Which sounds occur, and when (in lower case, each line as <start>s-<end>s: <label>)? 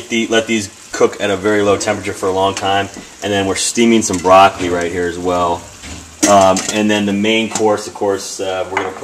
0.0s-9.0s: background noise
0.1s-0.7s: man speaking
0.9s-2.9s: man speaking
2.5s-2.6s: dishes, pots and pans
3.2s-5.7s: man speaking
4.1s-4.3s: dishes, pots and pans
6.2s-6.7s: dishes, pots and pans
6.6s-9.0s: man speaking
7.5s-7.6s: dishes, pots and pans
8.7s-9.0s: dishes, pots and pans